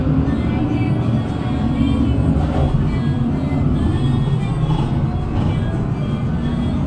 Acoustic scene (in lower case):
bus